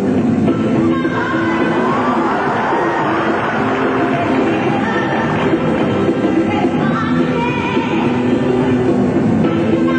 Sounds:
Music

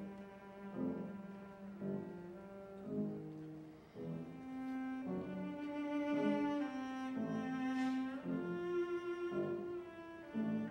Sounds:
Cello, Bowed string instrument, Musical instrument

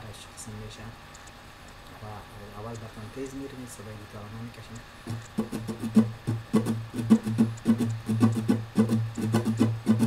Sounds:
Speech, Musical instrument, Guitar, Plucked string instrument, Music

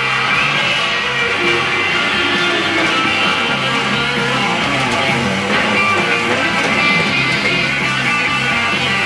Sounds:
Plucked string instrument, Music, Musical instrument, Guitar

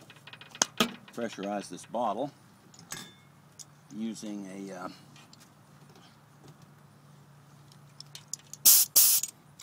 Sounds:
Speech

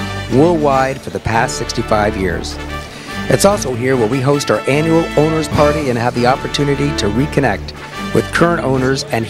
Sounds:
Music, Speech

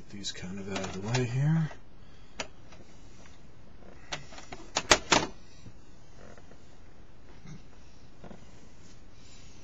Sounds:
Speech, inside a small room

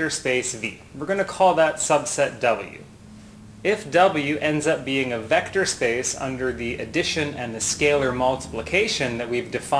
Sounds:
Speech

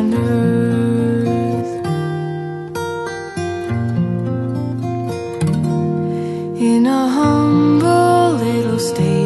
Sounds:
Lullaby, Music

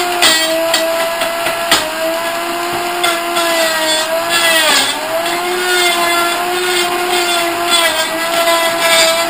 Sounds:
Blender

